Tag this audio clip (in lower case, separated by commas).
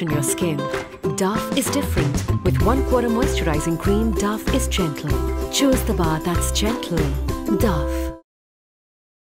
music, speech